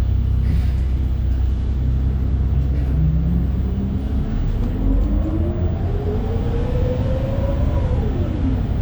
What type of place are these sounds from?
bus